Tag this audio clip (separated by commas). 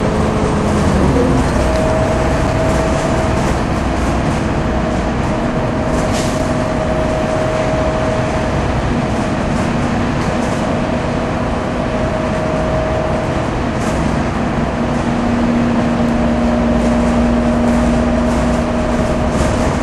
Bus, Motor vehicle (road), Vehicle